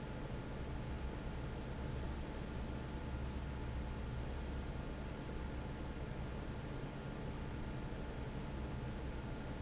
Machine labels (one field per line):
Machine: fan